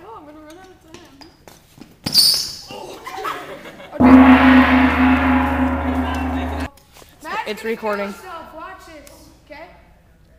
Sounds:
Gong

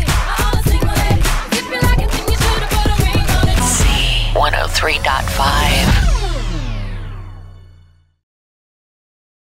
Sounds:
Speech, Music

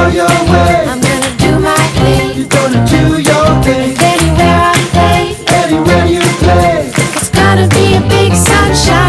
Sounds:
Music

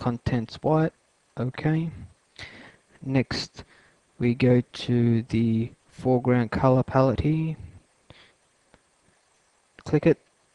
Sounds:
Speech

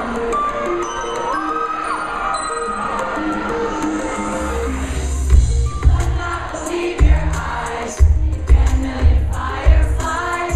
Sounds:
Music, Female singing

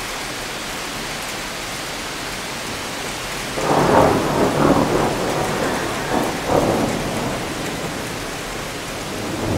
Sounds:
Thunder, Rain on surface, Thunderstorm, Rain

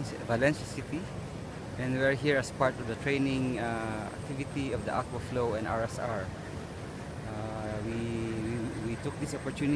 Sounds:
Speech

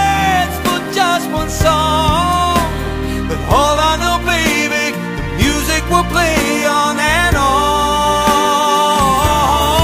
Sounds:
Music

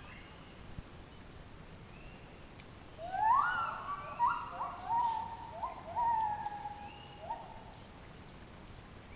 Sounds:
gibbon howling

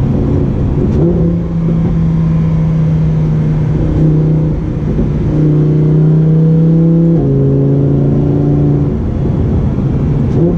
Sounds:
car passing by

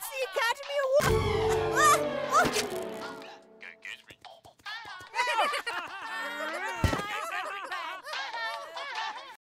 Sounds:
Music, Speech

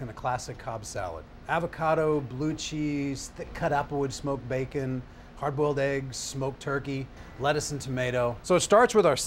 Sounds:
Speech

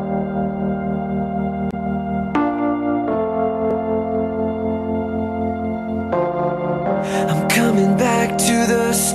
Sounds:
New-age music

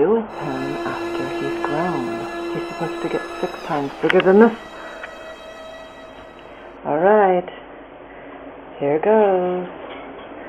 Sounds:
Speech, Music

